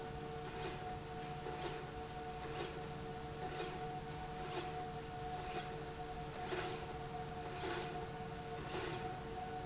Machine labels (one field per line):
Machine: slide rail